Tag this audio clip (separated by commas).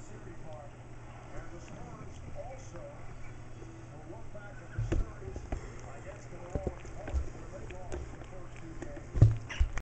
Speech